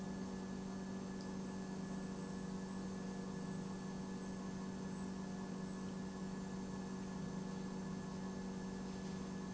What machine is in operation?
pump